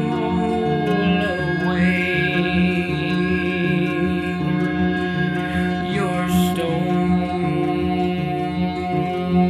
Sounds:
music

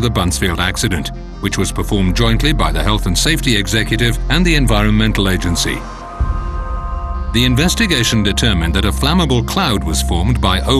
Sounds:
music
speech

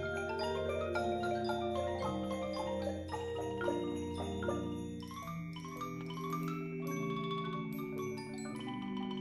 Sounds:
mallet percussion
glockenspiel
xylophone
marimba

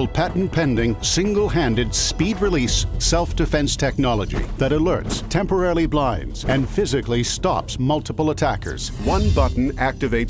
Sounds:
music
speech

